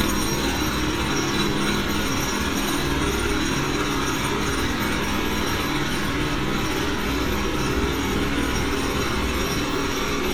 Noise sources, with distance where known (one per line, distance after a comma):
unidentified impact machinery, near